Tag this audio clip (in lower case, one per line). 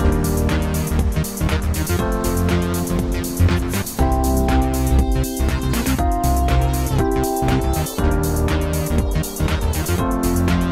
music